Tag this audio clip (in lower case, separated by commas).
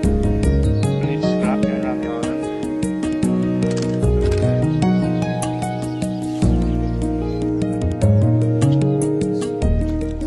music, speech